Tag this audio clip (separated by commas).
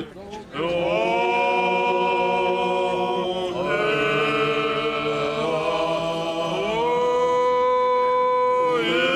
Chant